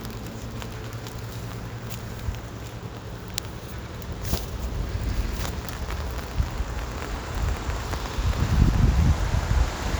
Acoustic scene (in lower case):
street